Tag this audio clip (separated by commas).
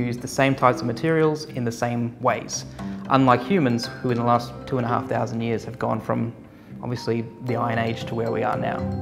Music, Speech